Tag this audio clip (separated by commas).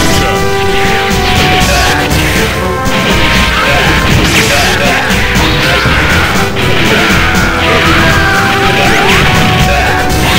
Music, Speech